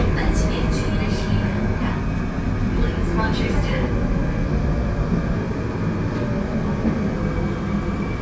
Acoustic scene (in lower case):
subway train